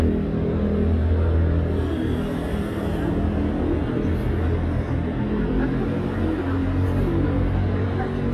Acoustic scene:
street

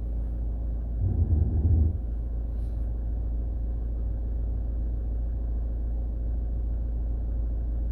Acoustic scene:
car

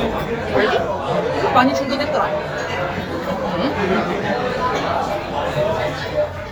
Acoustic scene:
crowded indoor space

